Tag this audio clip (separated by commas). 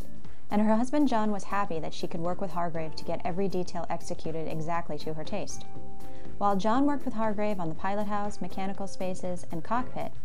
Speech, Music